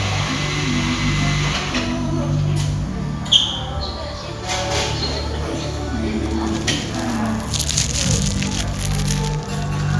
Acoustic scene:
cafe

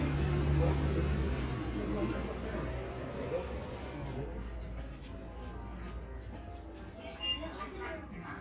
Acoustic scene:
crowded indoor space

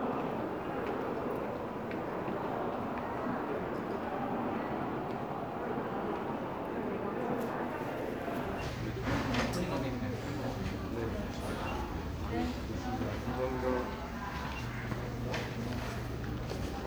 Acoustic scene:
crowded indoor space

